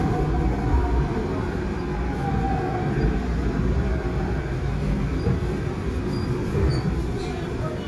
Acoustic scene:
subway train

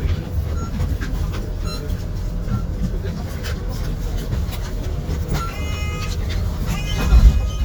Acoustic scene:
bus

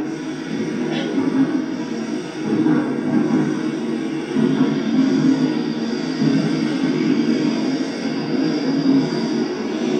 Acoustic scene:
subway train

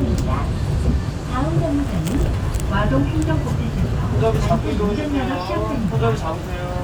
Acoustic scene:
bus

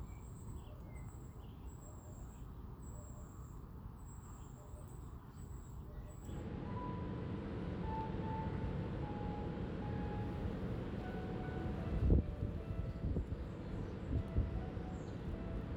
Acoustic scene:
park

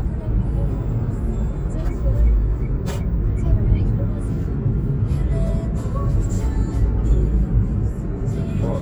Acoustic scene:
car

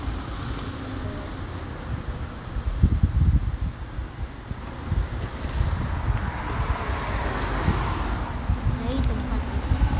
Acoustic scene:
street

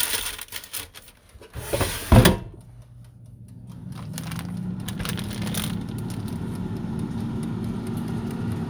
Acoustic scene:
kitchen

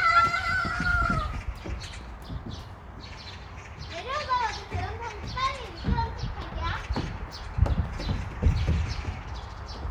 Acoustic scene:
park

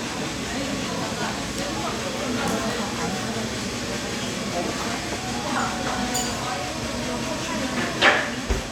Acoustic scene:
cafe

